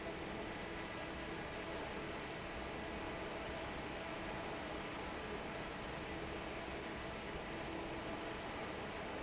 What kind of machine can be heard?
fan